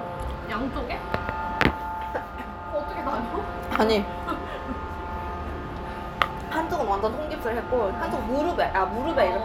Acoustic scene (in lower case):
restaurant